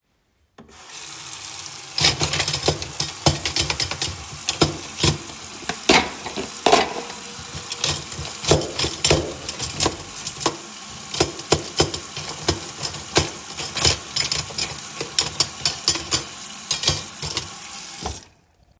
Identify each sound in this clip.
running water, cutlery and dishes